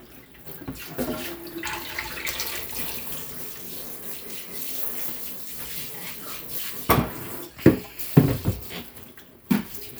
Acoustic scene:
kitchen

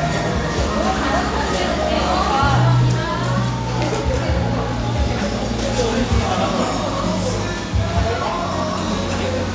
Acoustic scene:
cafe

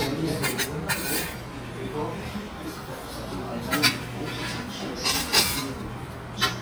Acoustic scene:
crowded indoor space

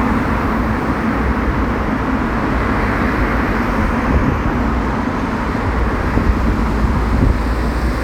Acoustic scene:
street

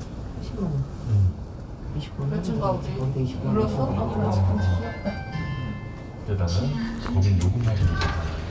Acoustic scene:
elevator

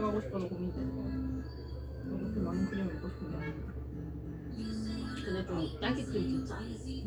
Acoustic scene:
cafe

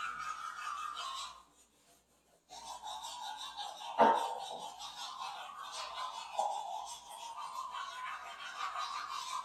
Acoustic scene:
restroom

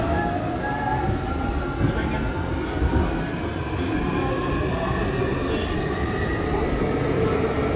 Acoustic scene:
subway train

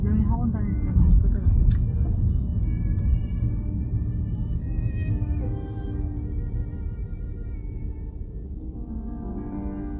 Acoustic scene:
car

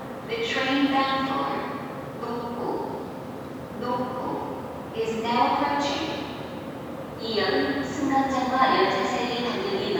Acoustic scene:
subway station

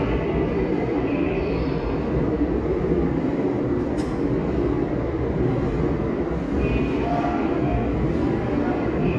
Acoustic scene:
subway station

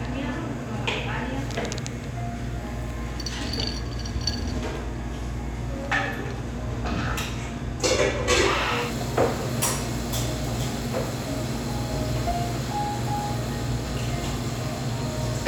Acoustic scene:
cafe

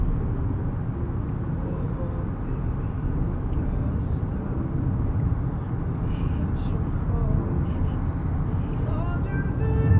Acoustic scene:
car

